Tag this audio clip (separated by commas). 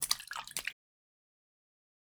splatter, Liquid